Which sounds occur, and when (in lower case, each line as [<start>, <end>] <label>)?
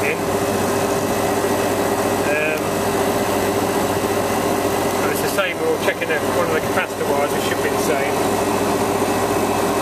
[0.00, 0.14] man speaking
[0.00, 9.81] engine
[2.22, 2.60] man speaking
[2.54, 2.65] tick
[4.83, 4.99] tick
[4.97, 8.17] man speaking
[7.49, 7.61] tick